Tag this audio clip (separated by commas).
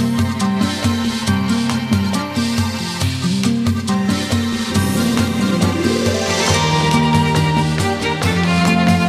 Music